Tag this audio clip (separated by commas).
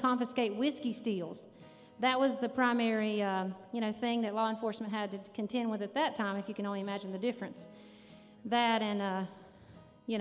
Music, Speech